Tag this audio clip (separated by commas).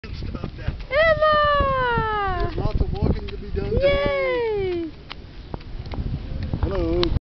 Speech